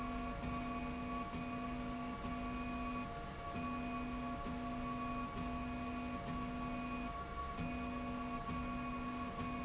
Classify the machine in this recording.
slide rail